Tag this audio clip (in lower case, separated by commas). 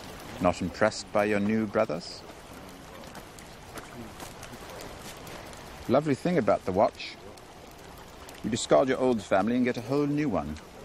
speech